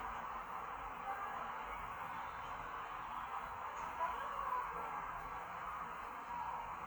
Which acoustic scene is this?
park